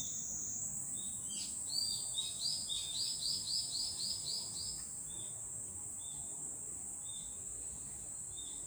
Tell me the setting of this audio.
park